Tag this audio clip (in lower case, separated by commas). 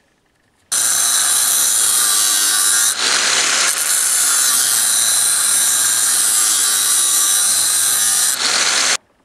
electric grinder grinding